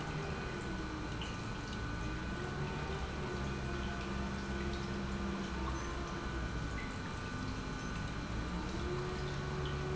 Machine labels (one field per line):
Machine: pump